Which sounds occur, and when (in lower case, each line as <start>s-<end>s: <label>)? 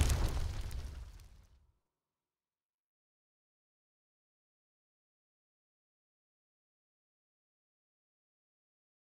0.0s-1.6s: crackle